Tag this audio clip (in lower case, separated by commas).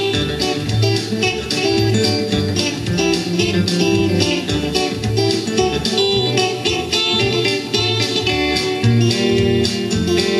musical instrument, plucked string instrument, guitar, music